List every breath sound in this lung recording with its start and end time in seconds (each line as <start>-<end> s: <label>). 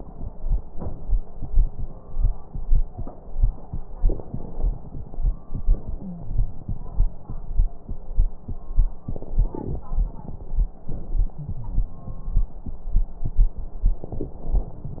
3.97-5.66 s: inhalation
3.97-5.66 s: crackles
5.67-7.89 s: exhalation
5.99-6.75 s: wheeze
9.02-10.89 s: inhalation
9.02-10.89 s: crackles
10.88-12.85 s: exhalation
11.36-12.72 s: wheeze
13.96-15.00 s: inhalation
13.96-15.00 s: crackles